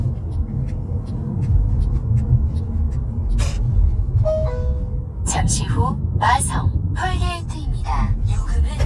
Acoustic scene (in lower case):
car